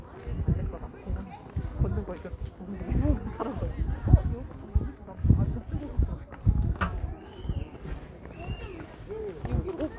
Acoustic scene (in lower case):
park